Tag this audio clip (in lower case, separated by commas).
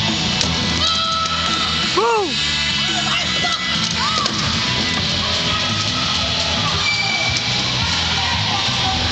speech, music